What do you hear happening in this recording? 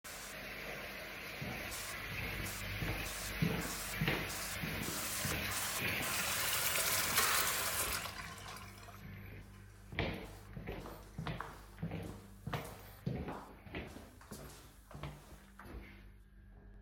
I'm going to the kitchen because I forgot to turn off the tap.